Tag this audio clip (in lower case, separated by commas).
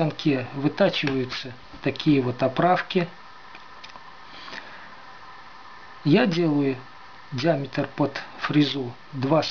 speech